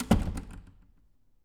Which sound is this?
door closing